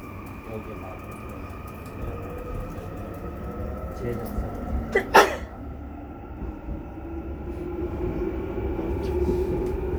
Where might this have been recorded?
on a subway train